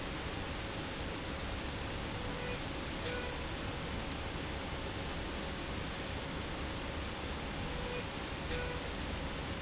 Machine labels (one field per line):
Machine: slide rail